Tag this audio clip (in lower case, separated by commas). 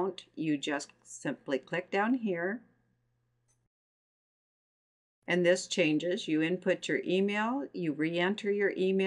speech